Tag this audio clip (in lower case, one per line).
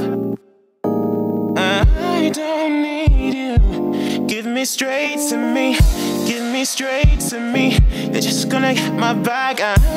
music